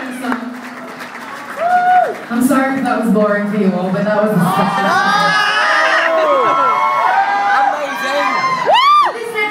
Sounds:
whoop, speech, inside a large room or hall

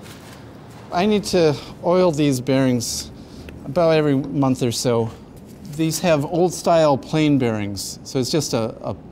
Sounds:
speech

